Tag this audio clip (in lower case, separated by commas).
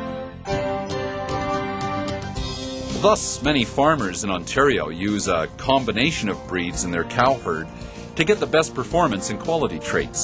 speech, music